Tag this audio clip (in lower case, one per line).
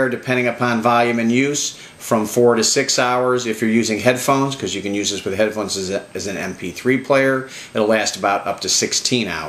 speech